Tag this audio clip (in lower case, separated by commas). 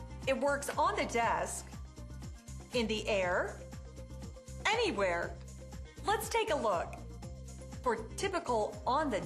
speech, music